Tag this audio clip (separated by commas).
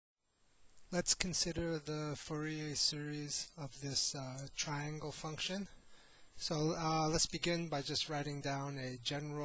monologue